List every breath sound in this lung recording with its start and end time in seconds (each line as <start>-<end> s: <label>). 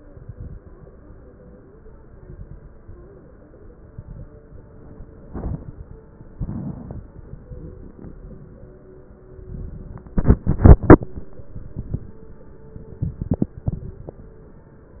0.00-0.62 s: exhalation
0.00-0.62 s: crackles
2.13-2.75 s: exhalation
2.13-2.75 s: crackles
3.88-4.37 s: exhalation
3.88-4.37 s: crackles
5.30-5.79 s: exhalation
5.30-5.79 s: crackles
6.37-7.03 s: exhalation
6.37-7.03 s: crackles
9.48-10.14 s: exhalation
9.48-10.14 s: crackles
12.92-13.59 s: exhalation
12.92-13.59 s: crackles